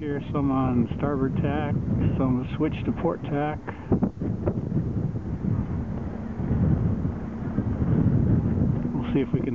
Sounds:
sailboat, wind noise (microphone), water vehicle, wind

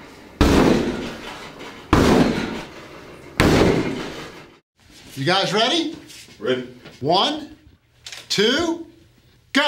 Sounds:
speech

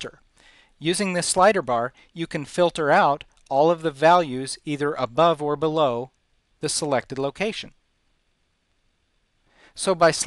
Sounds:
speech

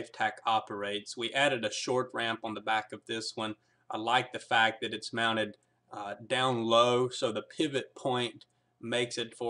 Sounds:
speech

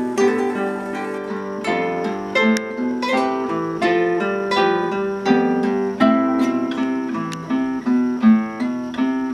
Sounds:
plucked string instrument, playing acoustic guitar, music, musical instrument, guitar, acoustic guitar

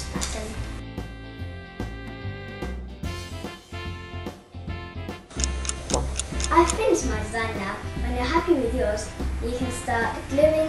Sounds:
speech, music

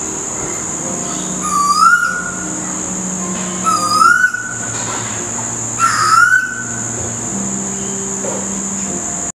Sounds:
bird, bird song

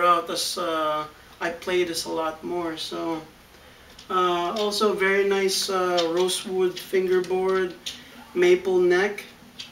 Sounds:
speech

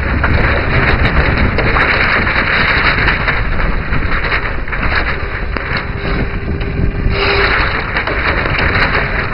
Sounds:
boat, kayak rowing, vehicle, kayak

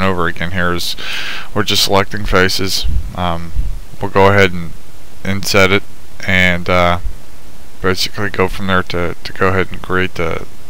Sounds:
speech

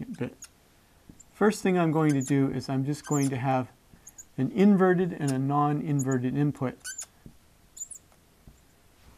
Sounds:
speech

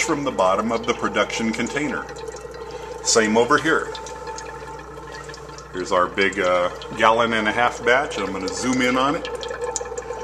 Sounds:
inside a small room, speech

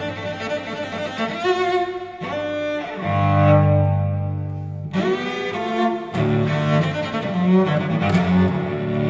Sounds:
bowed string instrument, playing cello, music, musical instrument, cello, classical music, blues, double bass

